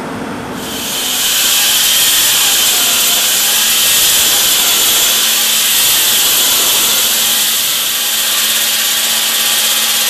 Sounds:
inside a large room or hall

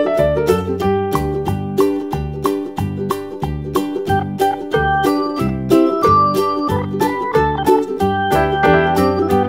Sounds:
music, piano

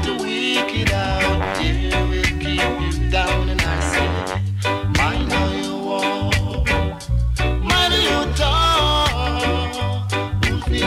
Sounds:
music

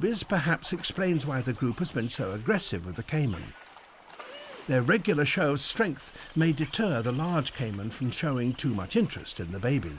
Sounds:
otter growling

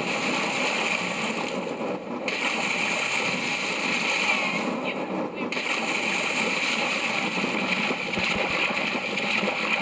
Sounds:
speech

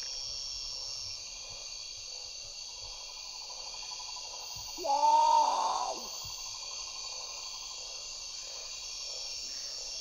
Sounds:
bird squawking

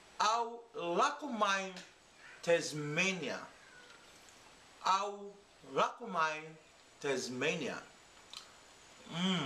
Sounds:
speech

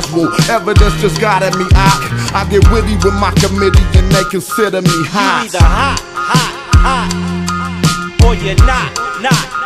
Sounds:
music, hip hop music

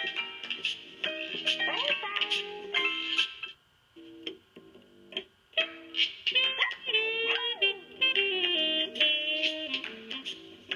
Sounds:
music, inside a small room, speech

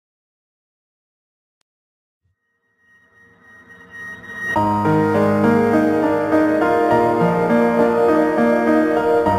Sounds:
music, background music

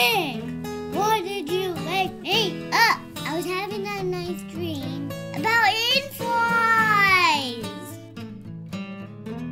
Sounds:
speech, music

